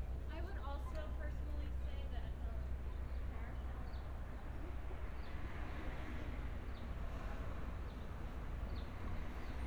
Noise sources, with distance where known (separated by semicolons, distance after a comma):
medium-sounding engine; person or small group talking, far